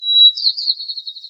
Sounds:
bird song, Wild animals, Bird, Animal

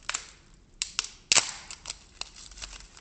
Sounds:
Wood

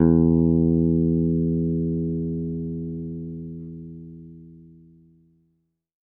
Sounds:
Plucked string instrument, Bass guitar, Music, Guitar, Musical instrument

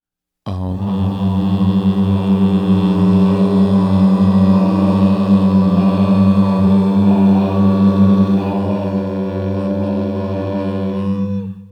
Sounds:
Human voice, Singing

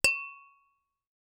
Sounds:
Glass, Tap

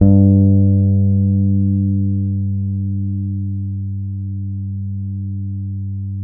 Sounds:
Musical instrument, Plucked string instrument, Music, Bass guitar, Guitar

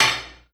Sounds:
dishes, pots and pans, home sounds

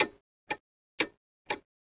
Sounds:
Clock, Mechanisms

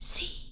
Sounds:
Whispering, Human voice

